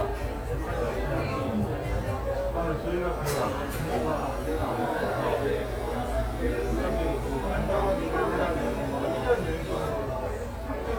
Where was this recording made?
in a cafe